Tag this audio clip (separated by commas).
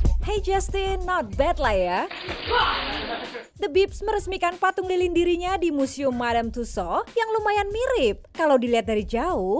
Speech, Music